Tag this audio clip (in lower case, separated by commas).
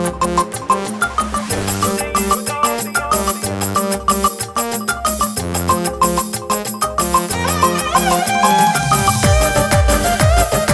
music